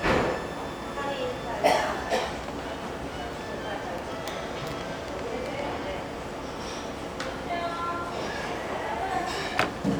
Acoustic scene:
restaurant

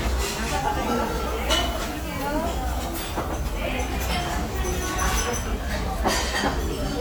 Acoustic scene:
restaurant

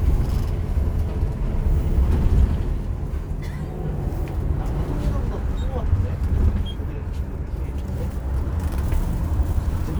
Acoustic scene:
bus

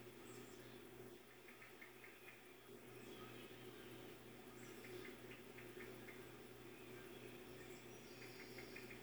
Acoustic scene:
park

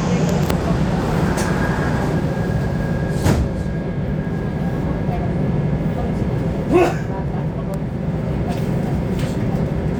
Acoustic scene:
subway train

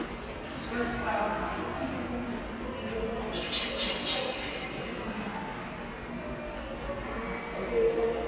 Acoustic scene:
subway station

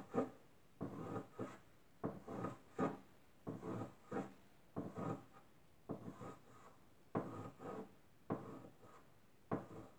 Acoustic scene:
kitchen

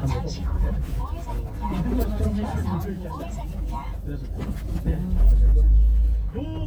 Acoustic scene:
car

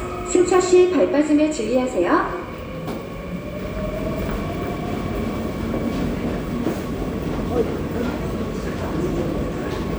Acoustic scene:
subway station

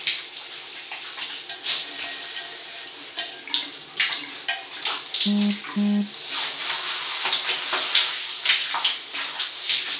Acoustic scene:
restroom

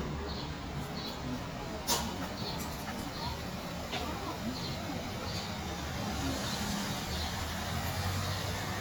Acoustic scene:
residential area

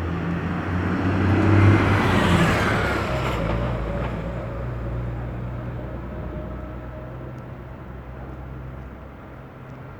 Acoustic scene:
street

